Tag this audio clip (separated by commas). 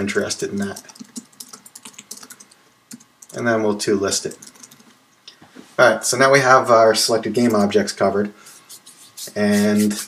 Speech